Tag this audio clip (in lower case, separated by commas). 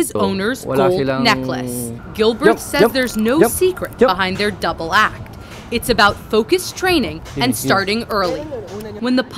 speech